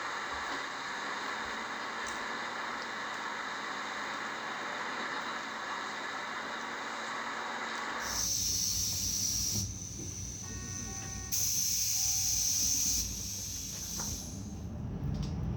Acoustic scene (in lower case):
bus